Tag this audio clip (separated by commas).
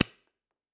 Tools